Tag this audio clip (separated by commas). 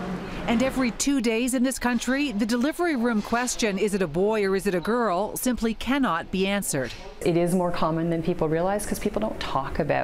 Speech